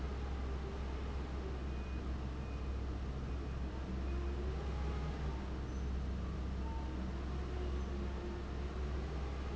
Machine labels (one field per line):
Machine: fan